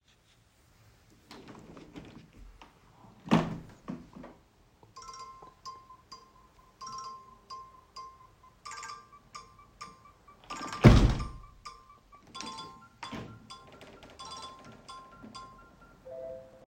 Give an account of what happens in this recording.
I open window, when my phone starts ringing, then I close it